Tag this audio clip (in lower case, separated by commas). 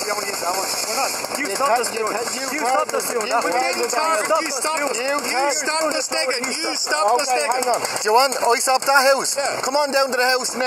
speech